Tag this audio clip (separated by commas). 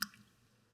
Water, Rain, Liquid, Drip, Raindrop